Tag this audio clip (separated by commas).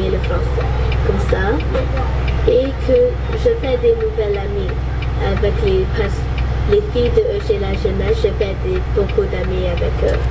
Vehicle, Speech, Truck